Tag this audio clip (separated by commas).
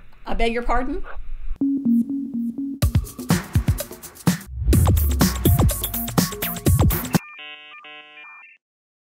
Music, Speech